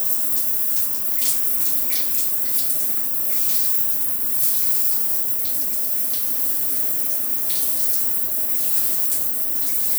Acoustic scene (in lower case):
restroom